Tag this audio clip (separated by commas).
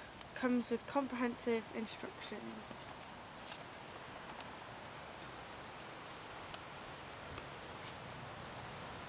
Speech